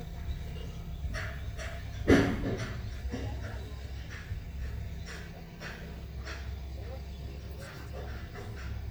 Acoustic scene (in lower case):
residential area